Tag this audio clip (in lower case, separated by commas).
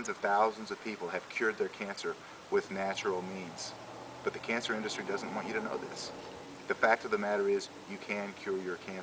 speech